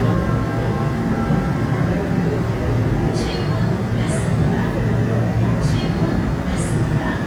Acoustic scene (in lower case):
subway train